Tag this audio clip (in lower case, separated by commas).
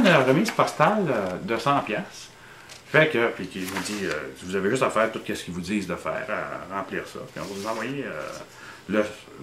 speech